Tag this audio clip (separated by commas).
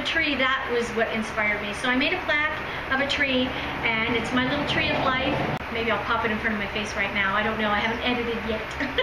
inside a large room or hall, Speech